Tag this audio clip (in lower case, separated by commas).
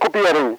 speech, human voice